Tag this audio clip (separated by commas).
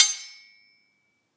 Domestic sounds, silverware